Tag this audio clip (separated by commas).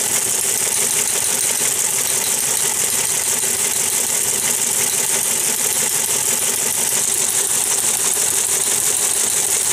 Typewriter